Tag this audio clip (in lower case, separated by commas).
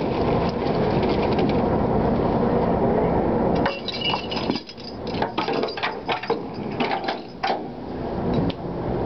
wind noise (microphone), wind